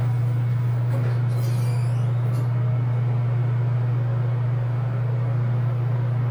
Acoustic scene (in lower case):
elevator